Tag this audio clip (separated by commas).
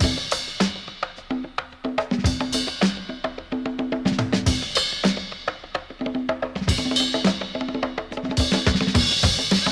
Drum, Bass drum, Music